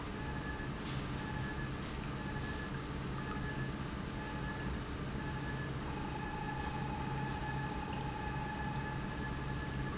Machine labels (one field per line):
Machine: pump